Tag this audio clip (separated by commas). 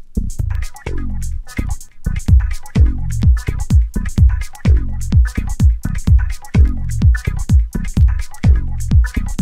Music